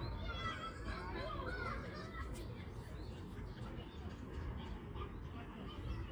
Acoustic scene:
park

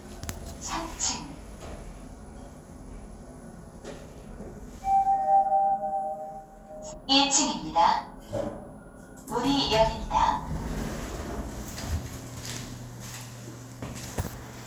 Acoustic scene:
elevator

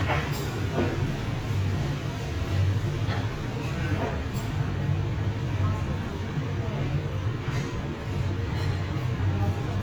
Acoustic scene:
restaurant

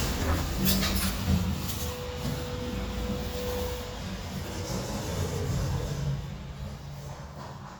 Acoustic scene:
elevator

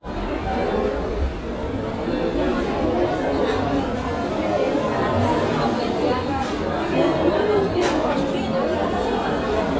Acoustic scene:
cafe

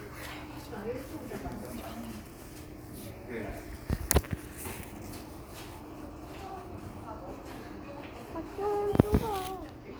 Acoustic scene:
crowded indoor space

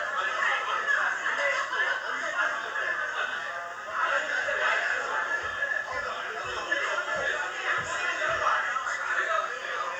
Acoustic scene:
crowded indoor space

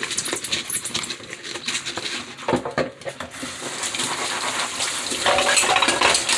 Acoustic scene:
kitchen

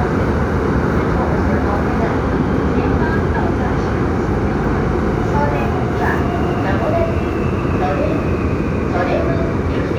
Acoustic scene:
subway train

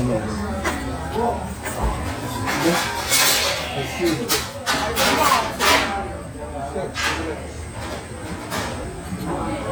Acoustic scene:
restaurant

